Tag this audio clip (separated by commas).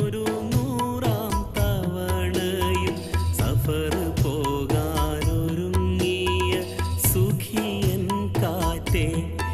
Male singing, Music